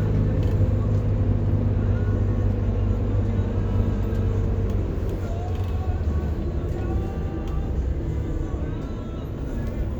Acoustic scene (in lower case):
bus